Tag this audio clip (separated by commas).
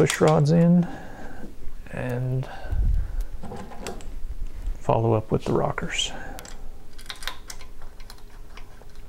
Speech